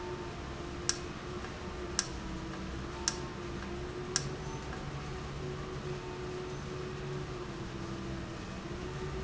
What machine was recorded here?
valve